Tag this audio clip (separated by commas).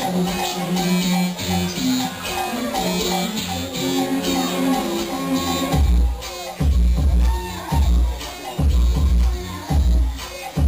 Music, inside a large room or hall